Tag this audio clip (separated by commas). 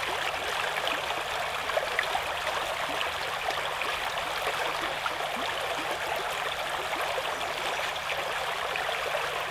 dribble, stream burbling, Stream